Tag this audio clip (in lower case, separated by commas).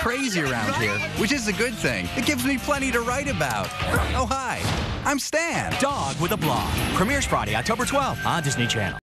music, speech